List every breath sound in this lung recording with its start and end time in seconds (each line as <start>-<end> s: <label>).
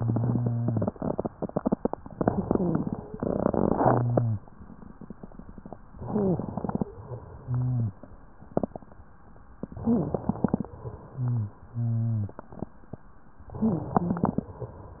5.97-6.40 s: wheeze
5.97-6.83 s: inhalation
6.87-9.57 s: exhalation
7.46-7.99 s: wheeze
9.57-10.71 s: inhalation
9.74-10.19 s: wheeze
10.72-13.46 s: exhalation
11.13-11.58 s: wheeze
11.71-12.35 s: wheeze
13.46-14.52 s: inhalation
13.59-14.22 s: wheeze
14.53-15.00 s: exhalation